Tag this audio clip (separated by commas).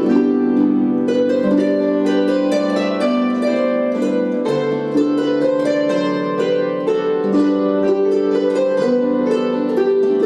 Music